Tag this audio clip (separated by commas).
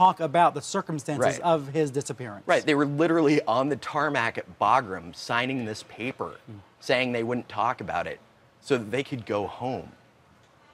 Speech